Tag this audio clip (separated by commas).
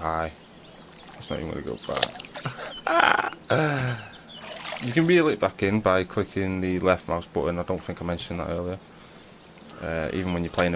outside, rural or natural, Speech, Wild animals